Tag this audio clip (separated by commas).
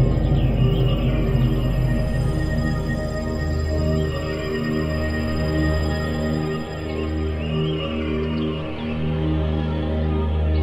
Bird, Scary music, Music